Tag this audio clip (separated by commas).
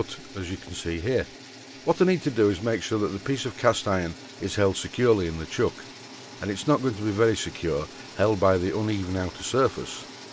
Tools, Power tool, Speech